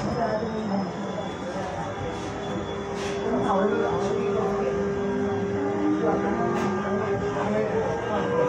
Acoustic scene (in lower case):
subway train